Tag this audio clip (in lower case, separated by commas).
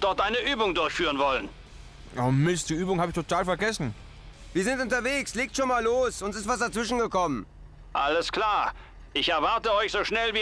speech, music